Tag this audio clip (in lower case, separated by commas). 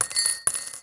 glass